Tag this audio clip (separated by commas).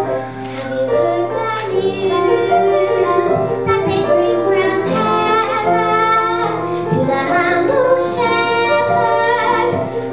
Child singing, Music